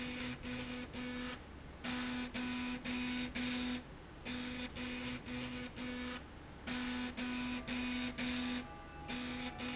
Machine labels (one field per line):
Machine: slide rail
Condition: abnormal